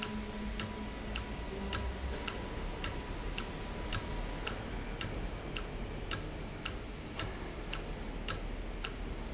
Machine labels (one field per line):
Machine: valve